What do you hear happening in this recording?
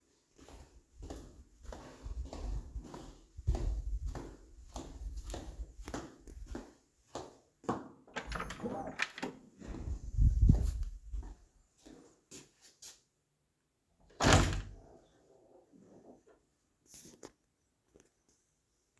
I'm walking in the hallway, open the door to my room and open my wardrobe